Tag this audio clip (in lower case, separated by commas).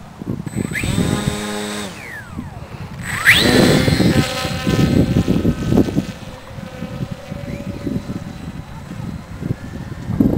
outside, rural or natural